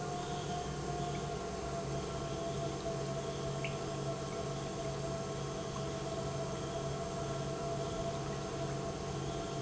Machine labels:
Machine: pump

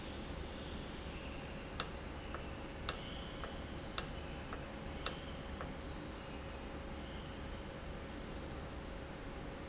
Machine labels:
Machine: valve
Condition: normal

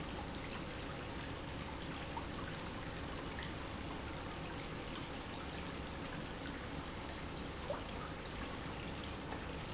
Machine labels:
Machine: pump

